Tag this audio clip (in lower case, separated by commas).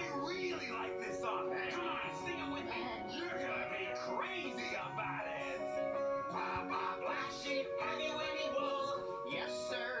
music, speech